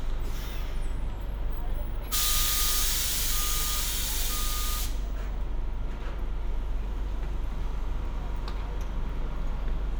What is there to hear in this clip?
large-sounding engine, reverse beeper